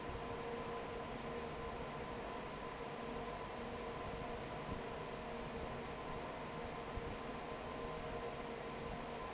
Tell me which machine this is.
fan